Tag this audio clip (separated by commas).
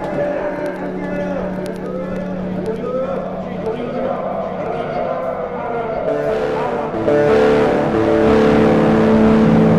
Music, Speech